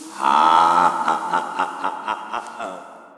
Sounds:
Human voice, Laughter

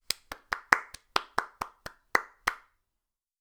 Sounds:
Clapping, Hands

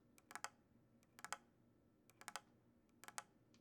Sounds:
Tap

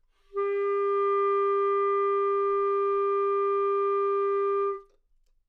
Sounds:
Wind instrument, Musical instrument, Music

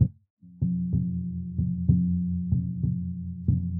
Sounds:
Music, Musical instrument, Bass guitar, Plucked string instrument, Guitar

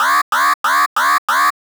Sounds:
Alarm

